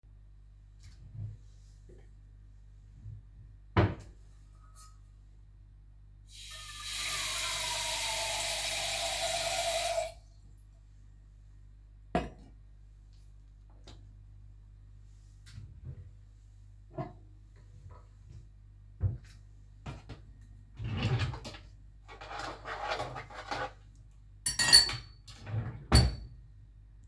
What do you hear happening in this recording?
I opened the drawer, picked the teapot, open the water, filled teapot, closed water. I put the teapot on the stove and turned it on. I opened and closed drawer for mug and searched for spoon, than put them together.